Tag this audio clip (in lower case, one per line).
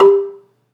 percussion
xylophone
mallet percussion
musical instrument
music